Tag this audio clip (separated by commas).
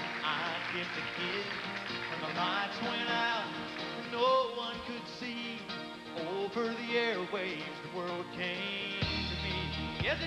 Music